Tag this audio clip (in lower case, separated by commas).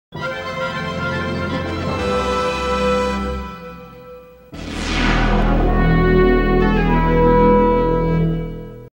music, television